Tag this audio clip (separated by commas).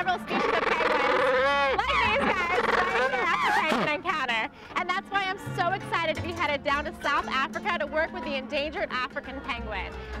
penguins braying